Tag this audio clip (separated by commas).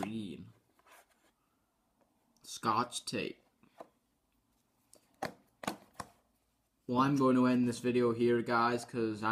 Speech, inside a small room